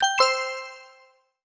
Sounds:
alarm

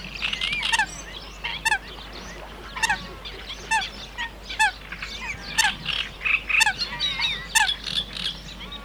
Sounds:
bird, wild animals, animal

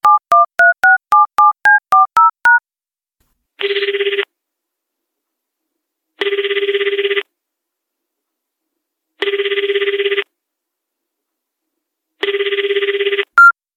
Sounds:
telephone, alarm

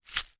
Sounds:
glass

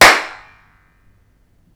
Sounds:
hands, clapping

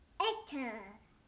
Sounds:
speech, child speech, human voice

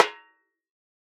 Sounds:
percussion, drum, snare drum, music, musical instrument

